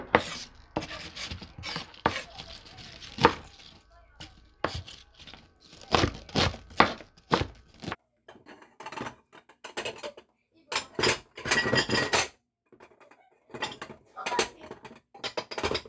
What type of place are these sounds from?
kitchen